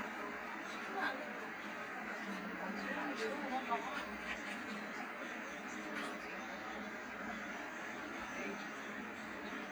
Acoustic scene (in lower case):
bus